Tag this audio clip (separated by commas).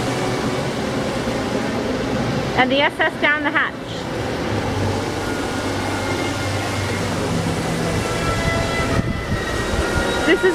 Speech